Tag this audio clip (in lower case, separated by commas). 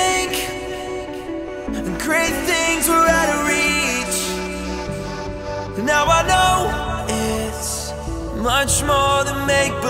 music